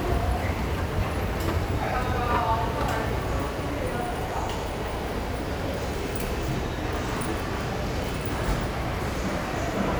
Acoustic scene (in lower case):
subway station